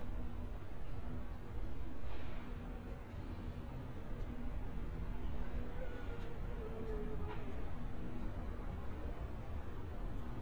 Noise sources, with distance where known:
unidentified human voice

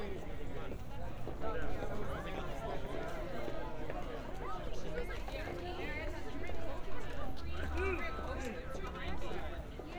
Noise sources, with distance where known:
unidentified human voice

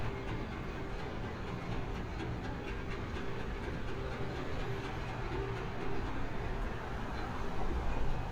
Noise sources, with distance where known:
unidentified impact machinery

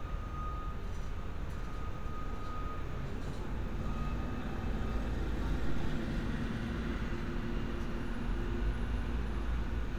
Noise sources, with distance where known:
large-sounding engine; reverse beeper, far

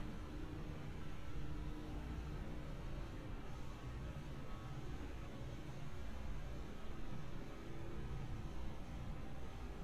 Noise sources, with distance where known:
engine of unclear size

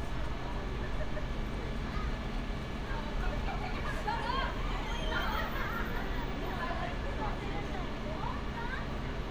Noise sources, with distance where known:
person or small group shouting

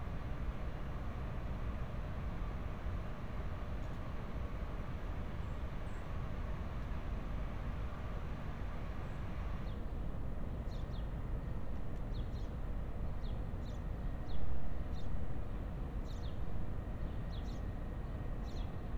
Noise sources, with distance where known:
background noise

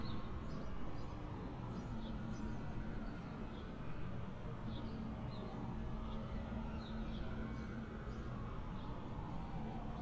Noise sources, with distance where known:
medium-sounding engine, far; siren, far

